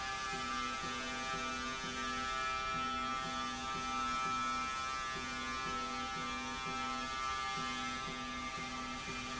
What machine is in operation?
slide rail